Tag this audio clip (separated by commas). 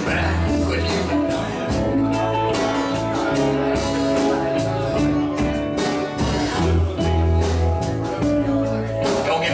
Speech, Music